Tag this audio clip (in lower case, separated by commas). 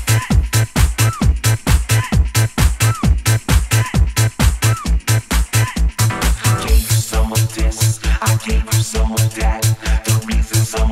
music